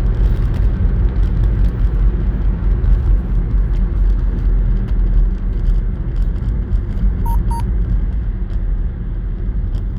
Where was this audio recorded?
in a car